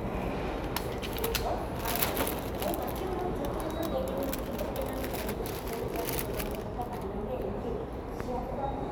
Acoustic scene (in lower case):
subway station